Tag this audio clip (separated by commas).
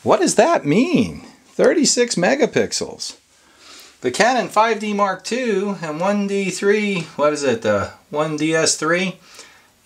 Speech, inside a small room